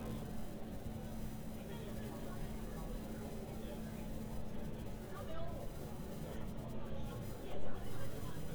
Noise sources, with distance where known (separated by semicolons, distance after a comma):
person or small group talking